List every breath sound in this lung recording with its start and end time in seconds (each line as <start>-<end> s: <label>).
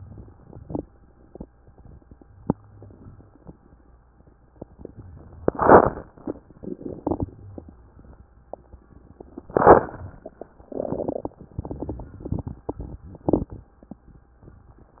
2.67-3.17 s: inhalation
3.20-3.71 s: exhalation
7.30-7.97 s: inhalation
7.30-7.97 s: crackles